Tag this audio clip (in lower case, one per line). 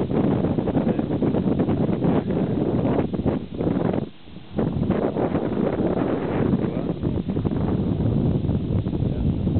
outside, rural or natural